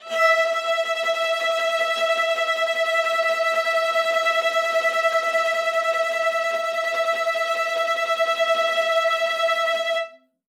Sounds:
Bowed string instrument, Music, Musical instrument

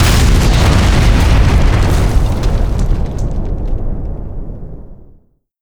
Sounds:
Boom, Explosion

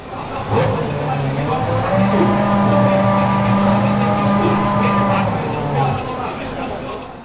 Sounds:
auto racing, Vehicle, vroom, Motor vehicle (road), Engine, Car

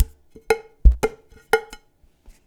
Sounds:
Domestic sounds, dishes, pots and pans

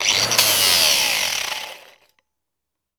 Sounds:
Tools

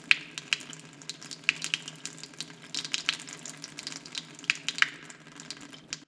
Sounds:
Frying (food), Domestic sounds

